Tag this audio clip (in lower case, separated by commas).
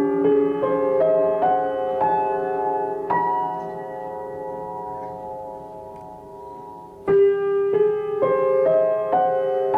tubular bells, musical instrument, music, keyboard (musical), piano